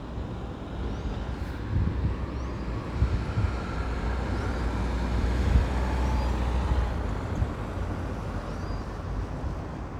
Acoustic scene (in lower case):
residential area